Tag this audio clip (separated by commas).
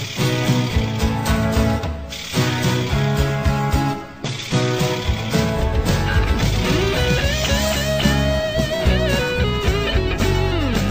Music